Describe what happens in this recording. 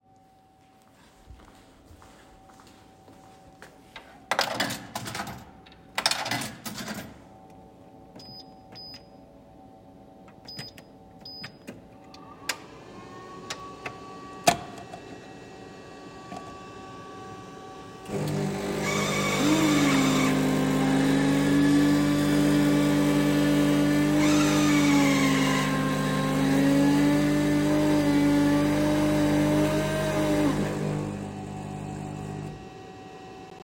I walked to the coffee machine, inserted my coin, chose my coffee and the machine ran.